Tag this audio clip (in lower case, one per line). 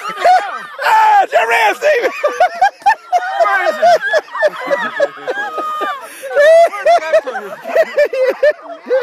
speech